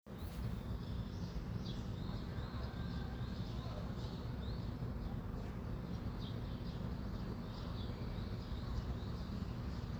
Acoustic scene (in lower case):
residential area